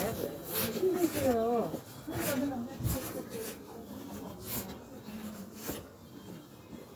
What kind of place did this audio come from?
residential area